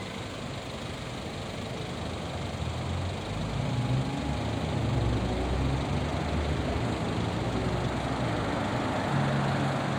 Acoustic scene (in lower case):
street